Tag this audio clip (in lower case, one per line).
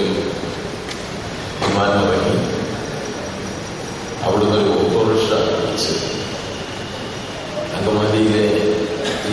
male speech
speech